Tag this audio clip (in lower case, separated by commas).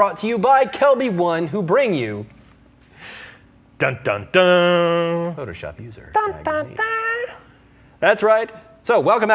speech